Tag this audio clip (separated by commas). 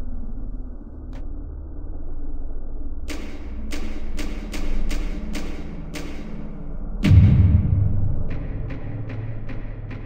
Door